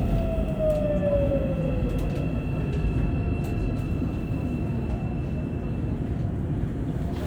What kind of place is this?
subway train